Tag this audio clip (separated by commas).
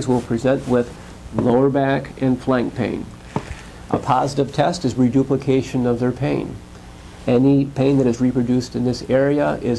Speech